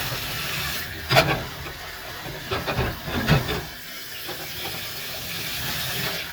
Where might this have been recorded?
in a kitchen